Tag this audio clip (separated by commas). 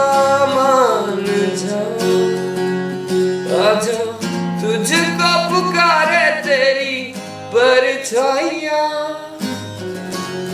Plucked string instrument, Music, Musical instrument, Country, Guitar, Acoustic guitar, Song